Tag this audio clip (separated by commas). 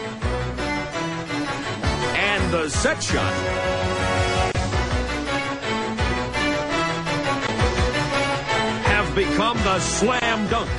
Music, Speech